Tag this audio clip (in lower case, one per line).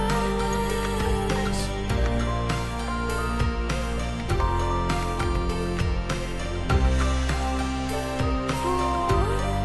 music